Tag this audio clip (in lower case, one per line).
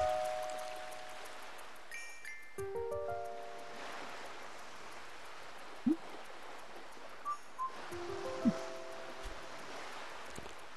music
stream